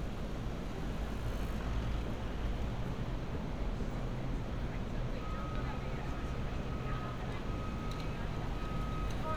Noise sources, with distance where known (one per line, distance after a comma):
engine of unclear size, far
reverse beeper, far
person or small group talking